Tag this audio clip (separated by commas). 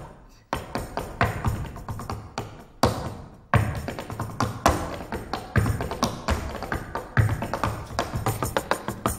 tap dancing